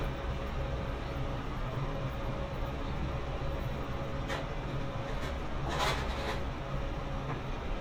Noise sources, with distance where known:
non-machinery impact, near

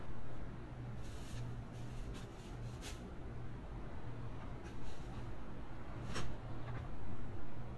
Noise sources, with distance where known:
non-machinery impact

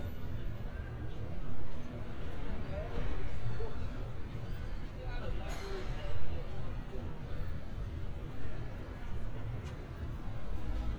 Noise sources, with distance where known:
person or small group talking

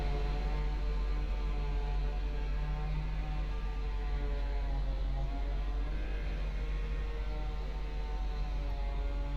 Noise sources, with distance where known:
unidentified powered saw, far

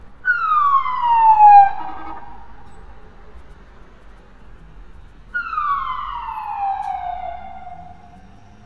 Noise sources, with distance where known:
siren, near

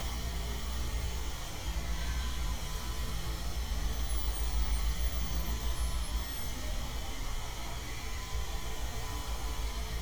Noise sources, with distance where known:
unidentified powered saw

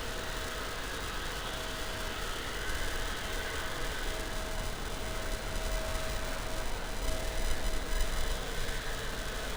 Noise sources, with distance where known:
unidentified impact machinery

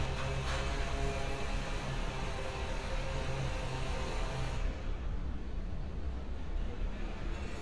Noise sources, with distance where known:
engine of unclear size, near; unidentified impact machinery

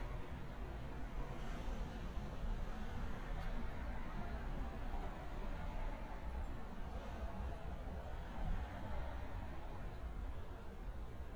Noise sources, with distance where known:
background noise

